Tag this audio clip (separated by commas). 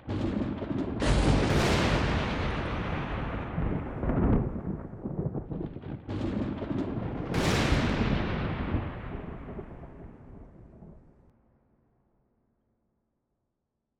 Thunder, Thunderstorm